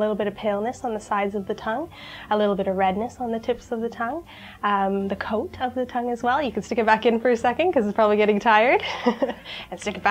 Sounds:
speech

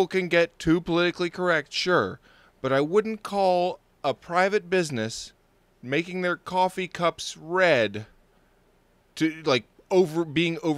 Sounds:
speech

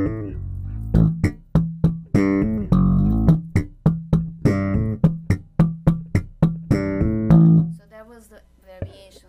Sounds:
music
bass guitar
musical instrument
plucked string instrument
guitar

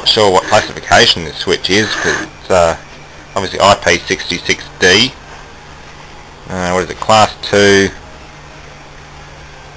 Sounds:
speech

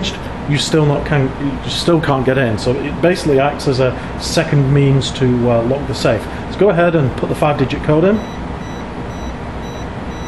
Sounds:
speech

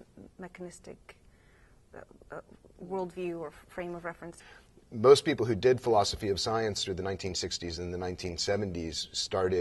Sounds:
speech

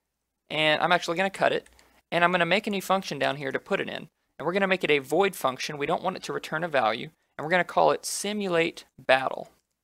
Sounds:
speech

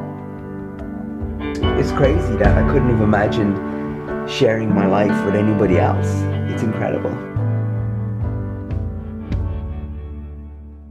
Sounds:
music
speech

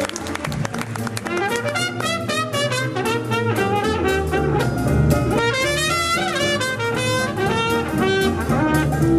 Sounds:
jazz
music

